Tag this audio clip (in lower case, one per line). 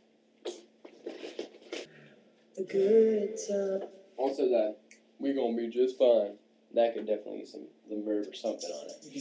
speech
music